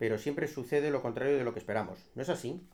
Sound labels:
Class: speech